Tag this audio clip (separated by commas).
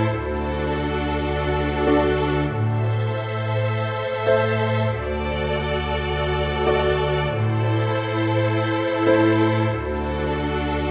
Music, Background music